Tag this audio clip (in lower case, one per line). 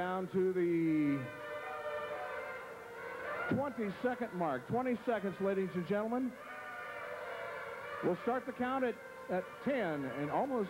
music
speech